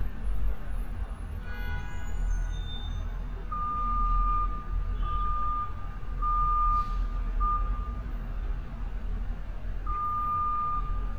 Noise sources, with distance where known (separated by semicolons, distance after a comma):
car horn; reverse beeper, near